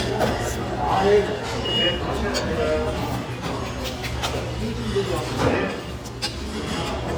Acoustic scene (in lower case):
restaurant